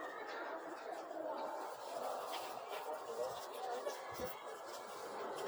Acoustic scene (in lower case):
residential area